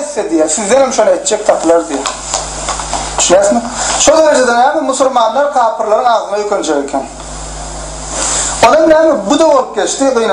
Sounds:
speech

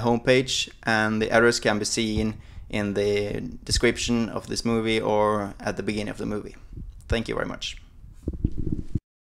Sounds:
speech

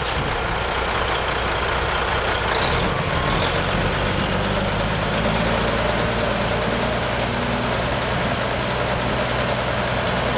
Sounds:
vehicle
truck

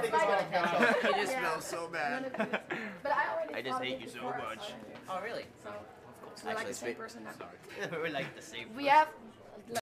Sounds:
speech

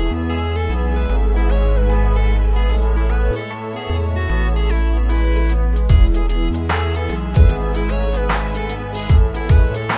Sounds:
music

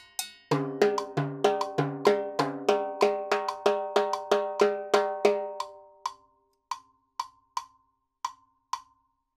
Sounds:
playing timbales

